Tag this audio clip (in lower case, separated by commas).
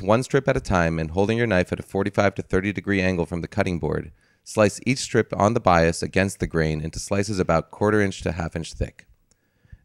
speech